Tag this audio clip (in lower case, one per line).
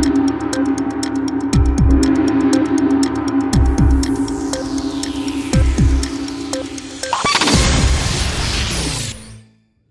gong